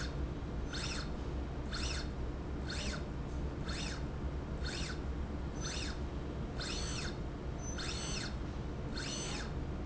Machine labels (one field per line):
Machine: slide rail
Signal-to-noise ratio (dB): -6 dB